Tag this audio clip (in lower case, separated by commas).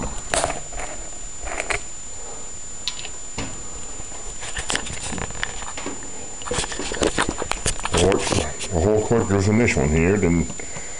speech